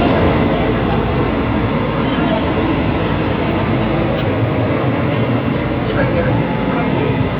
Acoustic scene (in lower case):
subway train